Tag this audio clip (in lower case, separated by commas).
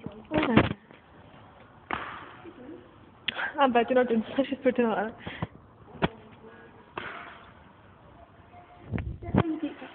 speech